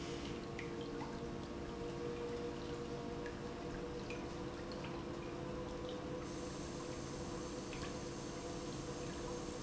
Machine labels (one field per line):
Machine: pump